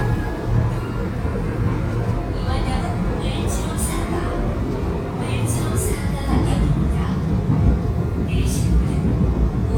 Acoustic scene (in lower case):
subway train